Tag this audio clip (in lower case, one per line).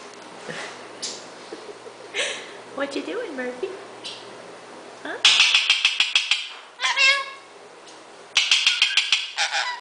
animal
speech